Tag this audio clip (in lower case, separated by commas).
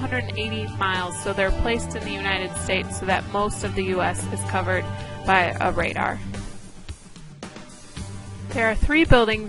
speech, music